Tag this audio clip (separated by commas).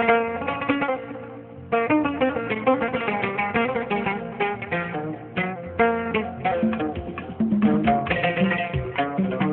Music